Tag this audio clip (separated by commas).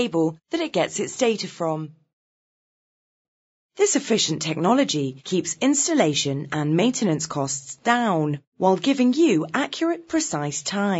Speech